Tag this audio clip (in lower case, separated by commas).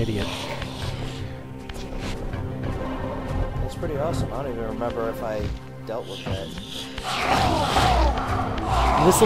music, run, speech